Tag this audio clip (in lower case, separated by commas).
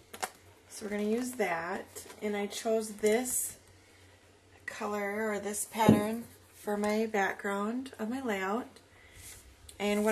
speech